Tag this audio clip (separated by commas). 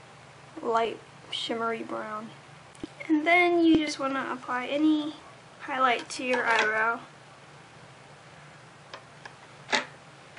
Speech